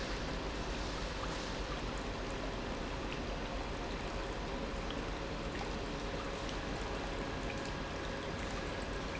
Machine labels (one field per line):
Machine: pump